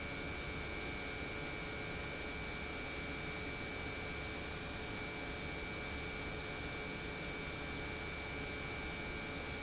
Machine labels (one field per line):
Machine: pump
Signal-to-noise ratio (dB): 0 dB